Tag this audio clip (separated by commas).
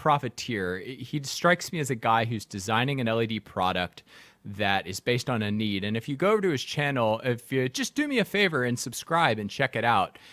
Speech